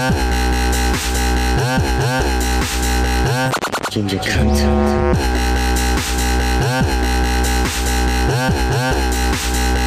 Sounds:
music, dubstep

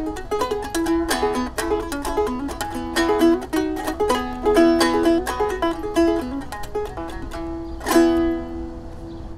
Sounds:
mandolin, music

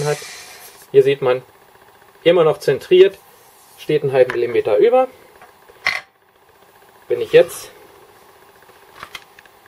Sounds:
speech

